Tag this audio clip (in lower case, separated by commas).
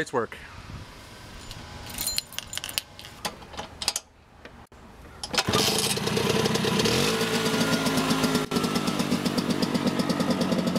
speech, motorcycle, vehicle, outside, urban or man-made